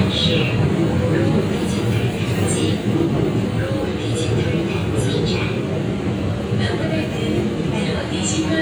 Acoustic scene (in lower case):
subway train